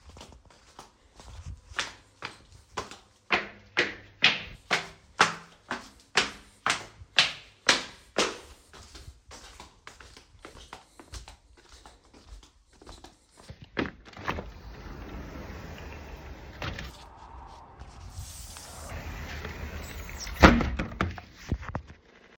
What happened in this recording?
I walked up stairs towards window,I opened the window for a few seconds in the bedroom and then closed it.